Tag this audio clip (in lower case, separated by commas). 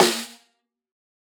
musical instrument, music, snare drum, drum, percussion